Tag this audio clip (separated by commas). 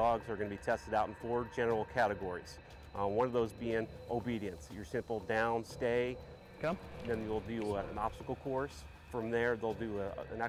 Speech, Music